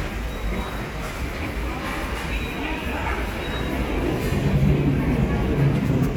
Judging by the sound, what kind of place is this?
subway station